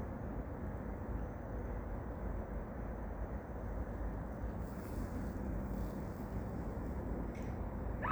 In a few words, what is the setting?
park